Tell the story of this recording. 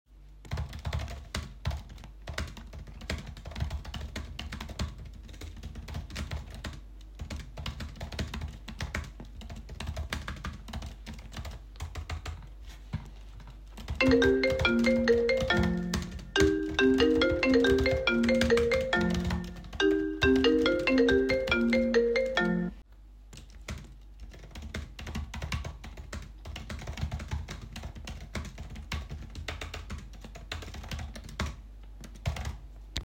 Typed some text on my laptop, phone started ringing, I let it ring for a while then declined, kept on typing.